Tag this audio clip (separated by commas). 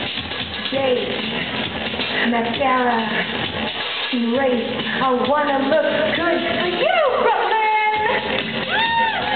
Music, Speech